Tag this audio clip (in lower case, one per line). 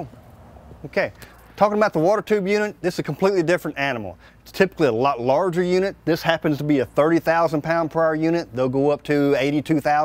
speech